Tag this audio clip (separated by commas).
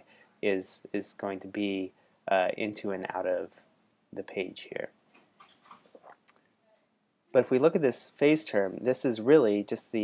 Speech